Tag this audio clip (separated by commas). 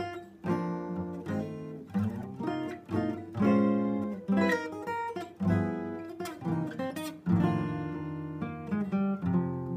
Plucked string instrument, Musical instrument, Acoustic guitar, Music